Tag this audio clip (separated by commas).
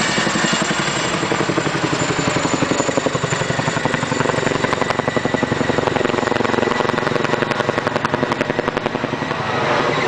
Aircraft, Helicopter, Vehicle